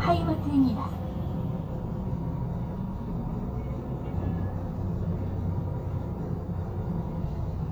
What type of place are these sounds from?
bus